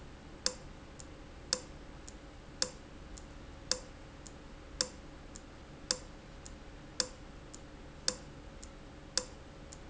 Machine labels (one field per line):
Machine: valve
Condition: abnormal